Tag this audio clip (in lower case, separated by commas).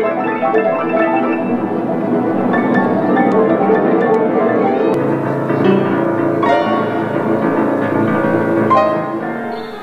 electronica, music